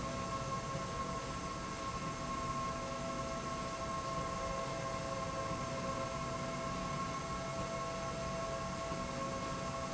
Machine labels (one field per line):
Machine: slide rail